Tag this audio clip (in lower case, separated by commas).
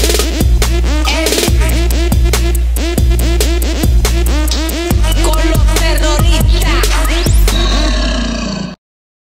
dance music, pop music, theme music, music